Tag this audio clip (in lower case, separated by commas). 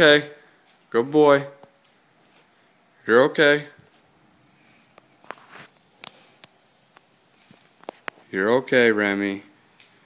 speech